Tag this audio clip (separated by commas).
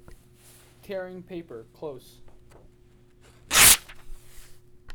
Tearing